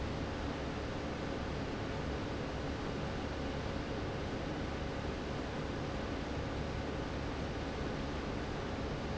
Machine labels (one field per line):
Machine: fan